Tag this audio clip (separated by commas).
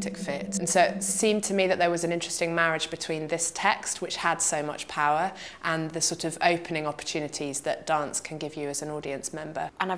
Speech